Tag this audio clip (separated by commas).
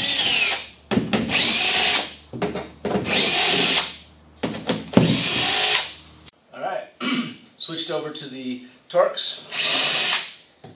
Speech, inside a large room or hall